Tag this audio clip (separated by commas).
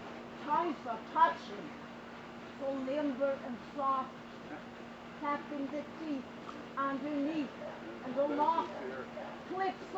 Speech